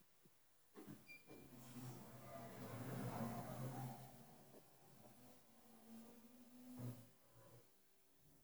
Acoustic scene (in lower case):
elevator